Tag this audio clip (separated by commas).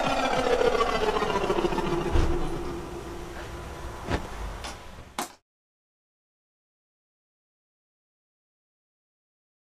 Music, Musical instrument, Scratching (performance technique)